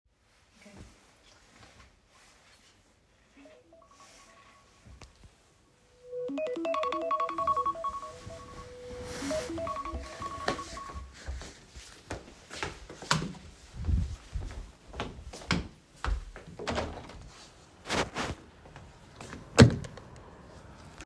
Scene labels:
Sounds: phone ringing, footsteps, light switch, window (more than once)

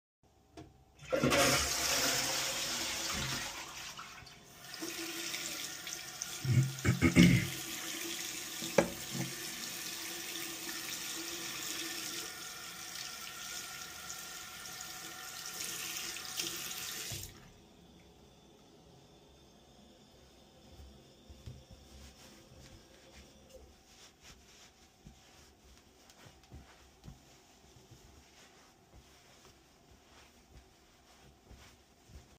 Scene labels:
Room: bathroom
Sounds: toilet flushing, running water

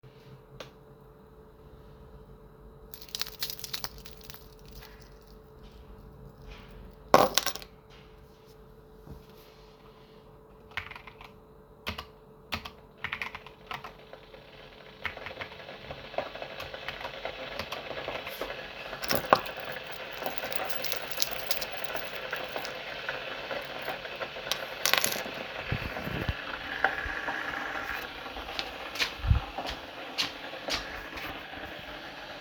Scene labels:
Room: bedroom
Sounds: keys, keyboard typing, coffee machine, footsteps

